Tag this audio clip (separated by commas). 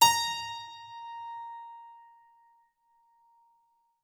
Musical instrument, Music, Keyboard (musical)